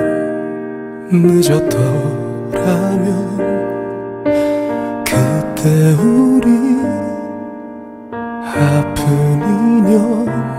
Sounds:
Music

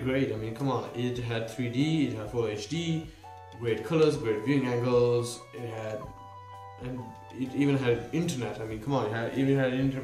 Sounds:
Music, Speech

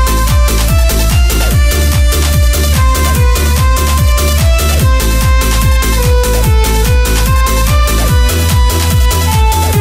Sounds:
Music

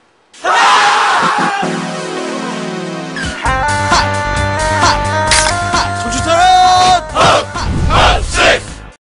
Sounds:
Speech, Music

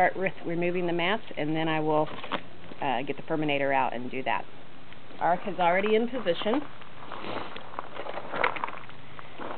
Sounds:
Speech

